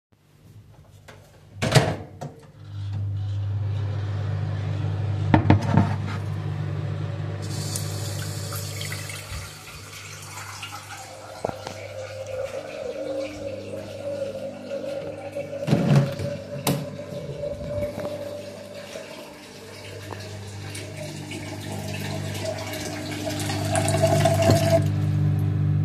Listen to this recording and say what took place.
I closed and started the microwave, then placed a glass container in the sink to fill it with water. While this was going on I went to the living room and opened the window (on "kip") and then went back to the kitchen and turned off the water.